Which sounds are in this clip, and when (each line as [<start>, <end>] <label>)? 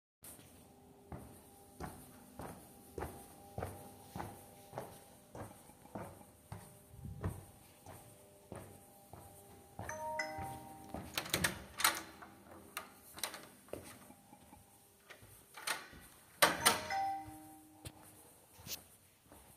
[0.99, 11.12] footsteps
[9.69, 10.85] phone ringing
[11.10, 13.95] door
[15.54, 17.02] door
[16.56, 17.88] phone ringing
[17.65, 19.56] footsteps